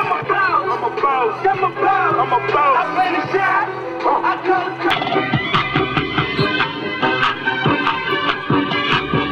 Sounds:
Speech, Music

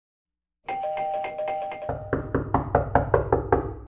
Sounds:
Doorbell

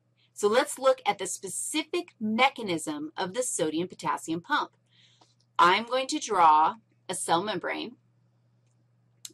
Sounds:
Speech

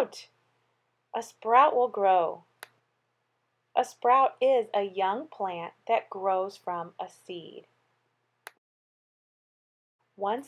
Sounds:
Speech

